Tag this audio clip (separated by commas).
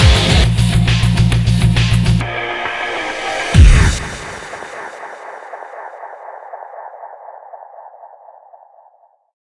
Music